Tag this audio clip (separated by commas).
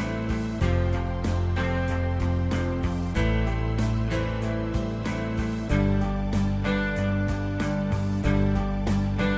Music